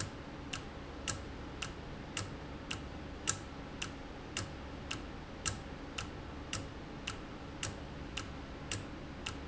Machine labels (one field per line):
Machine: valve